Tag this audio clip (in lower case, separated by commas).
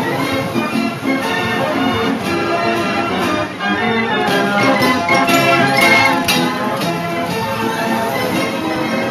jazz, music